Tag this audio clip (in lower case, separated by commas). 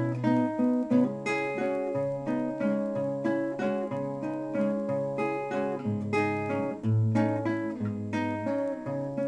music, guitar, plucked string instrument, musical instrument